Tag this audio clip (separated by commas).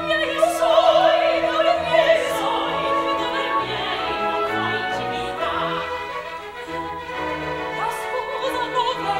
Music, Opera